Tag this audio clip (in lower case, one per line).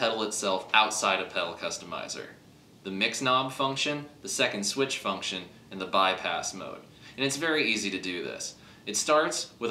speech